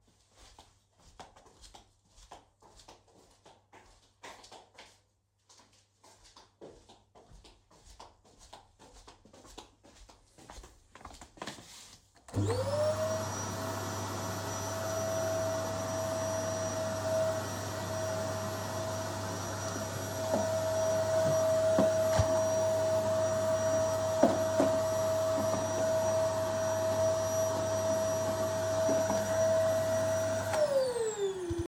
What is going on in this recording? I walked towards vacuum cleaner, I turned on the vacuum cleaner in the living room.